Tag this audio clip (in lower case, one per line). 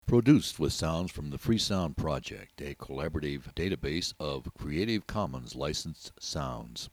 human voice